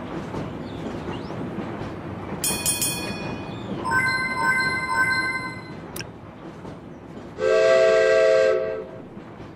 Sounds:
railroad car, train horn, train, rail transport, clickety-clack

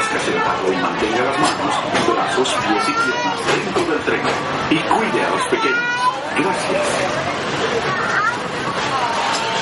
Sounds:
speech

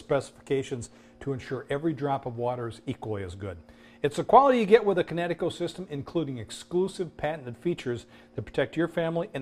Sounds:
speech

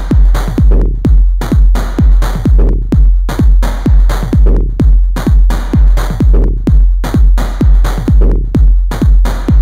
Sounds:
electronic music, music, techno

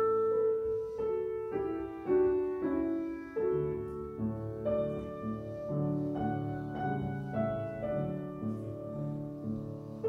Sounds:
musical instrument, clarinet, woodwind instrument, classical music, music

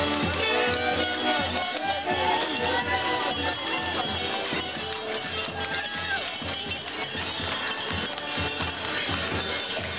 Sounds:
music, speech

